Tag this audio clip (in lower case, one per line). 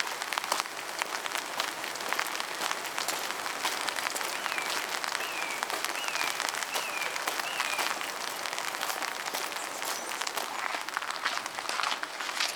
water
rain